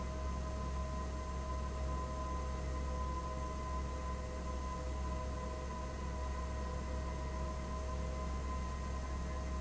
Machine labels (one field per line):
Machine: fan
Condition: abnormal